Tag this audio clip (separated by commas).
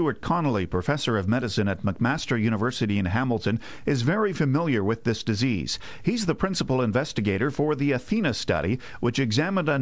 Speech